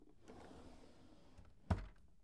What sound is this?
drawer closing